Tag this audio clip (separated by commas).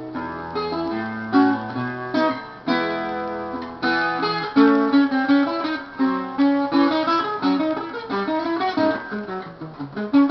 Strum, Musical instrument, Music, Acoustic guitar, Guitar